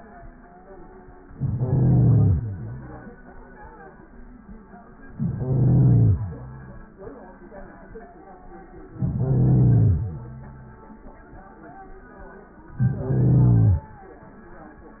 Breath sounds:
1.25-3.07 s: inhalation
5.12-6.94 s: inhalation
8.88-10.88 s: inhalation
12.74-13.86 s: inhalation

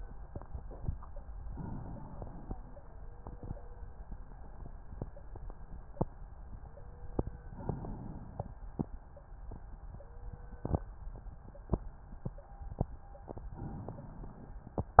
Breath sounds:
1.40-2.59 s: inhalation
7.44-8.63 s: inhalation
13.48-14.67 s: inhalation

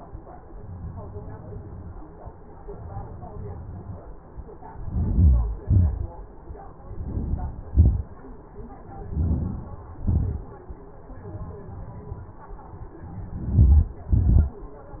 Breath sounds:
4.69-5.50 s: inhalation
5.54-6.28 s: exhalation
6.81-7.71 s: inhalation
7.74-8.41 s: exhalation
8.69-9.60 s: inhalation
9.68-10.59 s: exhalation
13.05-14.18 s: inhalation
14.23-15.00 s: exhalation

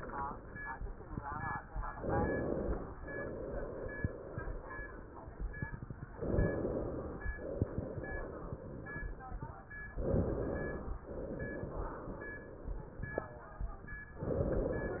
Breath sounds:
1.95-3.01 s: inhalation
3.01-5.61 s: exhalation
6.11-7.30 s: inhalation
7.34-9.67 s: exhalation
9.95-11.06 s: inhalation
11.06-13.27 s: exhalation
14.18-15.00 s: inhalation

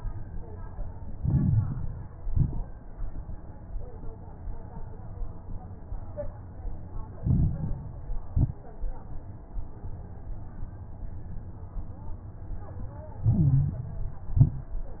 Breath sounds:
1.10-2.11 s: inhalation
1.10-2.11 s: crackles
2.15-2.73 s: exhalation
2.15-2.73 s: crackles
7.14-8.15 s: inhalation
7.14-8.15 s: crackles
8.21-8.80 s: exhalation
8.21-8.80 s: crackles
13.21-13.93 s: inhalation
13.21-13.93 s: stridor
14.02-14.74 s: exhalation
14.02-14.74 s: crackles

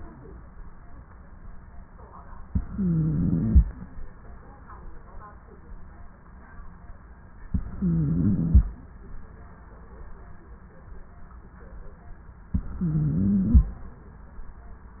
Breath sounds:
2.49-3.65 s: inhalation
2.49-3.65 s: stridor
7.52-8.68 s: inhalation
7.52-8.68 s: stridor
12.56-13.72 s: inhalation
12.56-13.72 s: stridor

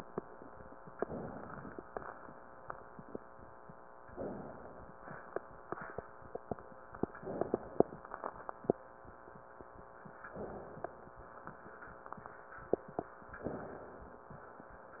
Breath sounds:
0.91-1.85 s: inhalation
1.85-2.73 s: exhalation
4.09-5.01 s: inhalation
5.02-5.98 s: exhalation
7.18-8.06 s: inhalation
10.29-11.17 s: inhalation
13.43-14.29 s: inhalation

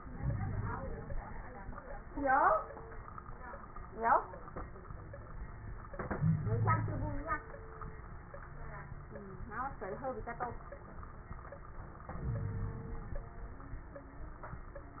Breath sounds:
0.00-1.11 s: inhalation
0.12-0.70 s: wheeze
6.16-7.24 s: wheeze
12.10-13.18 s: inhalation
12.24-12.87 s: wheeze

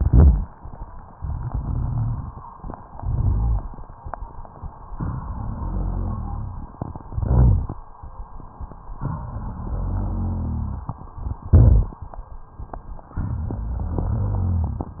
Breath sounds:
0.00-0.49 s: crackles
1.10-2.41 s: inhalation
1.10-2.41 s: crackles
2.90-3.95 s: exhalation
2.90-3.95 s: crackles
4.95-6.74 s: inhalation
4.95-6.74 s: crackles
6.96-7.86 s: exhalation
6.96-7.86 s: crackles
8.97-10.95 s: inhalation
8.97-10.95 s: crackles
11.54-12.12 s: exhalation
11.54-12.12 s: crackles
13.19-15.00 s: inhalation
13.19-15.00 s: crackles

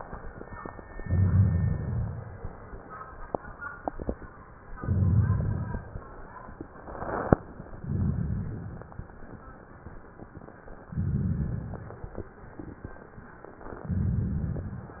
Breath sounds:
1.02-2.45 s: inhalation
1.02-2.45 s: rhonchi
4.78-5.90 s: inhalation
4.78-5.90 s: rhonchi
7.86-8.98 s: inhalation
7.86-8.98 s: rhonchi
10.91-12.03 s: inhalation
10.91-12.03 s: rhonchi
13.85-14.97 s: inhalation
13.85-14.97 s: rhonchi

